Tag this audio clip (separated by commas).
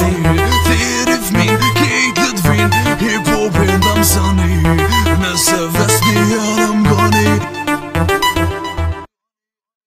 Music, Afrobeat